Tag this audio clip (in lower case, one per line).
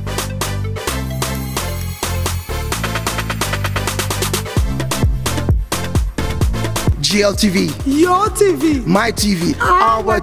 music
afrobeat